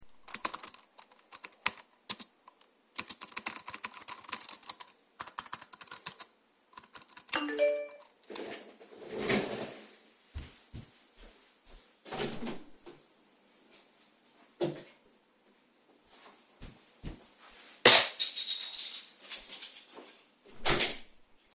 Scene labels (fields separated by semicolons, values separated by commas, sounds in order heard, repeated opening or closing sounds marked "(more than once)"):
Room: bedroom; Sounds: keyboard typing, phone ringing, footsteps, door (more than once), keys